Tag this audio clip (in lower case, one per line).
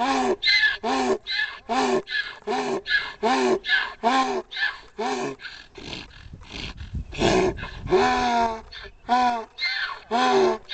ass braying